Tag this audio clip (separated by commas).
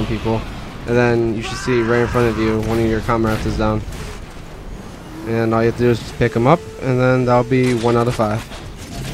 Speech